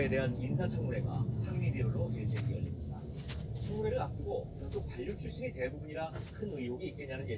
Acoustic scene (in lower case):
car